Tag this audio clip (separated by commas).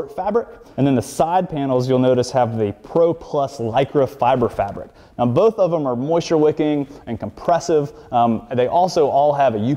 Speech